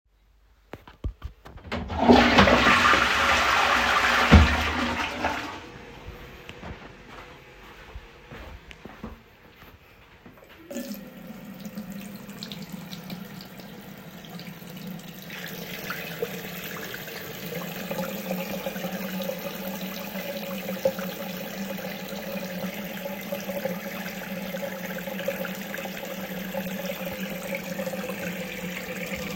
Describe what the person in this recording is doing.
Toilet flush followed by running water from sink.